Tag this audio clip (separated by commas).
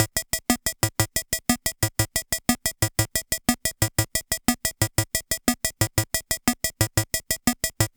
Keyboard (musical), Musical instrument, Music